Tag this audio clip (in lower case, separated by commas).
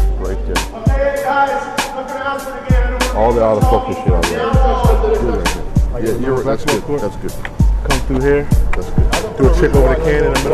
speech, music